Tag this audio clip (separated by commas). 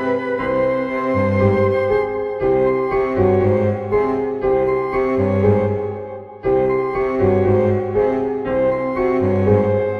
Cello, Bowed string instrument, Double bass